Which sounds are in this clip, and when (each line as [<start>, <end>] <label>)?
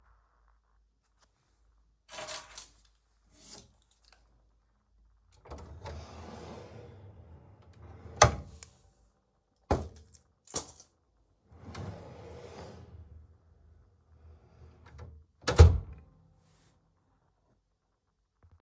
[2.00, 3.53] keys
[5.46, 8.25] wardrobe or drawer
[10.25, 11.04] keys
[11.69, 15.96] wardrobe or drawer